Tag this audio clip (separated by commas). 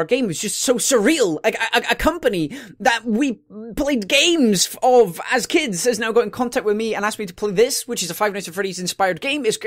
Speech